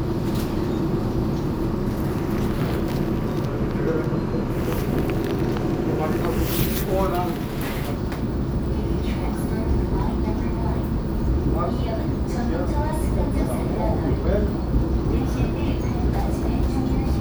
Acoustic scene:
subway train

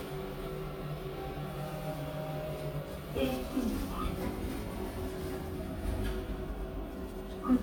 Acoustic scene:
elevator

